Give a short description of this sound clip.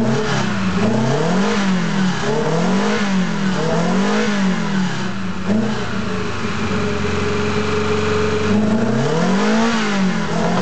Engine revving up